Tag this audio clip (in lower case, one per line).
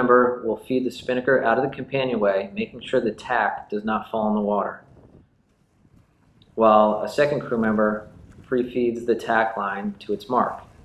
speech
vehicle
boat
sailing ship